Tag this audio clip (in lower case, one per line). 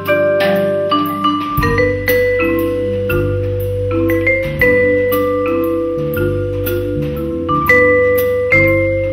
music
playing vibraphone
percussion
vibraphone